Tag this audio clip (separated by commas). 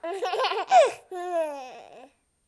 Laughter, Human voice